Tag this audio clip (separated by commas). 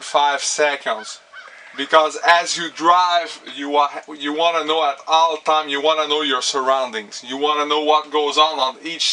Speech